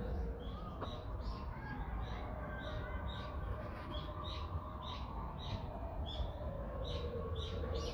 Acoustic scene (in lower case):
residential area